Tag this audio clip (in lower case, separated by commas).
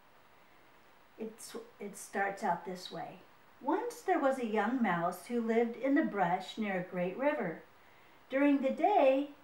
speech